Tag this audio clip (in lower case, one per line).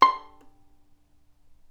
music
musical instrument
bowed string instrument